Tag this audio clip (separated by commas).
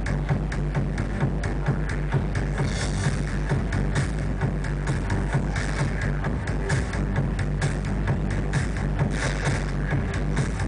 Music